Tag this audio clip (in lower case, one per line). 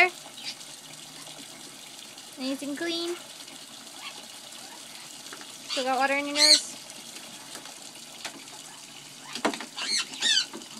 water
sink (filling or washing)
faucet